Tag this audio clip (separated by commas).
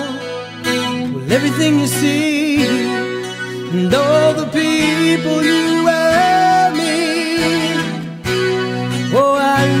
Music